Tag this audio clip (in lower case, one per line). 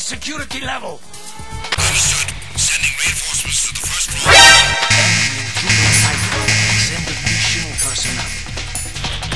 speech
music